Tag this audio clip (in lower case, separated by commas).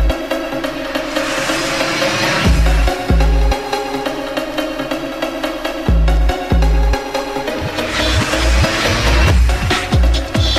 electronica